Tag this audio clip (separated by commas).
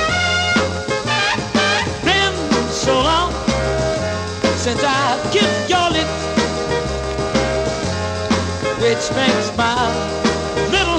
Music